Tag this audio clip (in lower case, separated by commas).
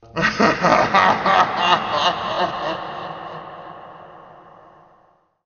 human voice, laughter